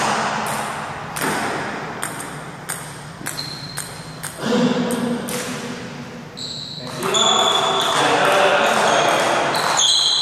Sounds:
playing table tennis

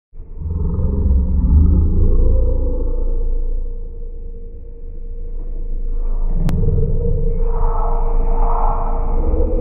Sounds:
groan

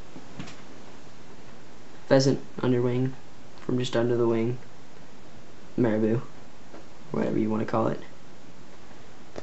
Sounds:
speech

